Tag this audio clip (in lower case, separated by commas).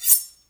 silverware, home sounds